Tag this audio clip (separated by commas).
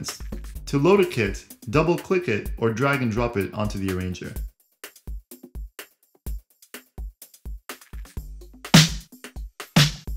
Music, Speech